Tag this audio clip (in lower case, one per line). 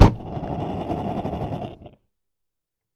fire